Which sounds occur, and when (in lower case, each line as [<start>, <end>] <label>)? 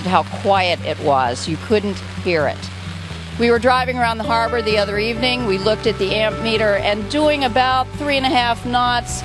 [0.00, 1.98] female speech
[0.00, 9.24] boat
[0.00, 9.24] music
[0.00, 9.24] water
[2.18, 2.68] female speech
[3.31, 9.19] female speech